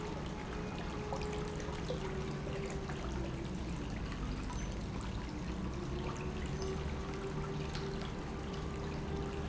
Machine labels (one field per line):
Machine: pump